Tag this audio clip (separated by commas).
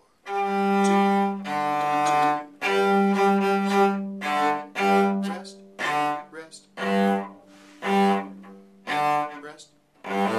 Cello, Musical instrument, playing cello, Speech, Music